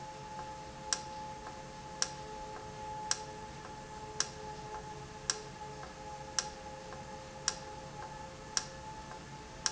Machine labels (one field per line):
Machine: valve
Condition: normal